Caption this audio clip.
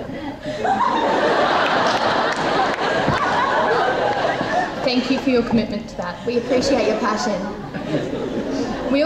A crowd laughs as a people give a speech